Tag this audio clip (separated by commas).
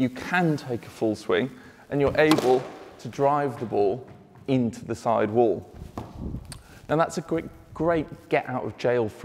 playing squash